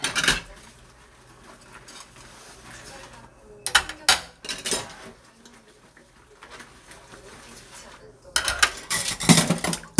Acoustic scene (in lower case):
kitchen